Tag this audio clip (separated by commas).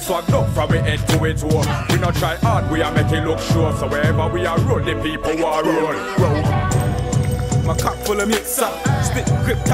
Music, Fill (with liquid)